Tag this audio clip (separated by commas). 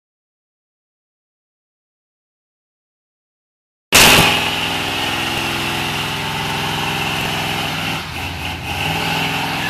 Vehicle, Car